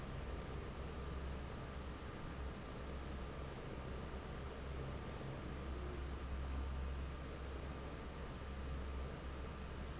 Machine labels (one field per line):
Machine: fan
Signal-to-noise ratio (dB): 6 dB